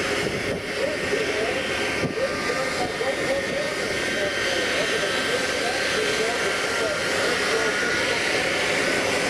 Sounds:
Jet engine, Truck

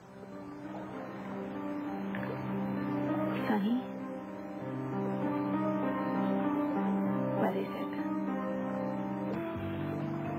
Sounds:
Speech, Music

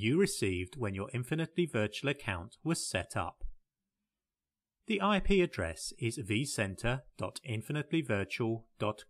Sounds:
Speech

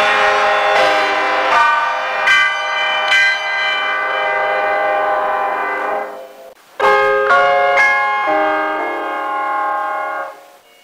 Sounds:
Jingle

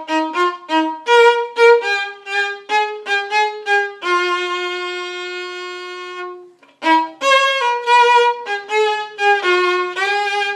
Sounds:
Musical instrument, Violin, Music

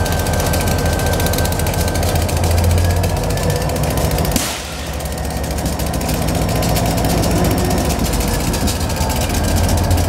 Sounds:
outside, urban or man-made, Train, Vehicle, Railroad car, Rail transport

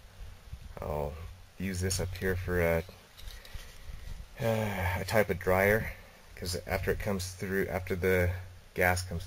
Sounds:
Speech

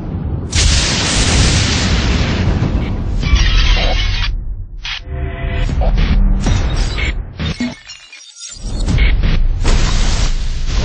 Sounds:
Sound effect

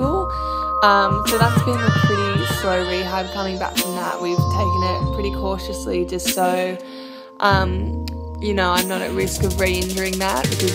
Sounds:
Speech, Music

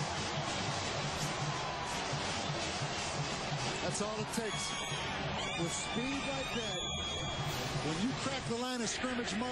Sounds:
Speech

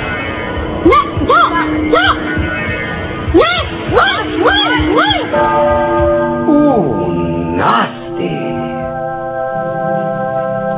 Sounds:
Music, Speech

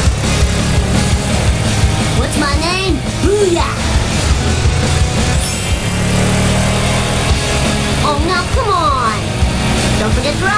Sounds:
Music, Speech

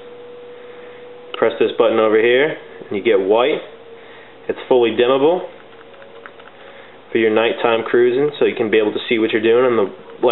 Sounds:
Speech

